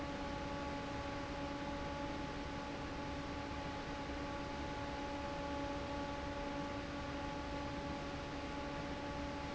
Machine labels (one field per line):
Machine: fan